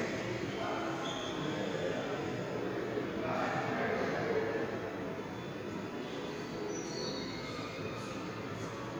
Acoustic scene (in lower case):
subway station